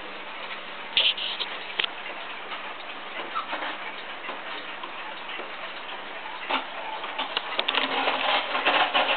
A clock is ticking gently and something squeaks and rumbles